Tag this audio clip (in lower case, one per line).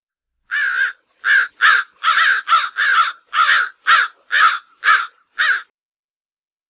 wild animals
bird
animal
bird song